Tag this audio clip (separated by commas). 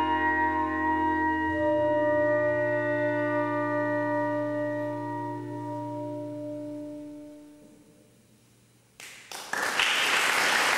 Music, Musical instrument, Clarinet